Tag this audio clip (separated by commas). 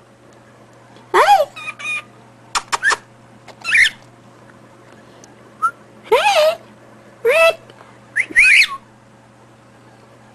Whistling, Speech